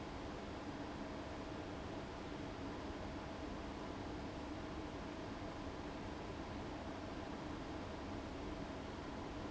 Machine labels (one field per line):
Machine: fan